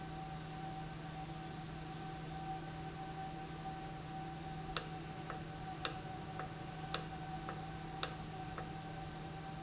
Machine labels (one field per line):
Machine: valve